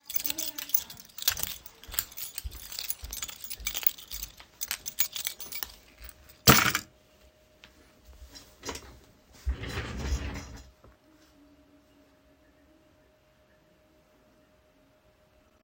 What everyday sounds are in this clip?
keys, footsteps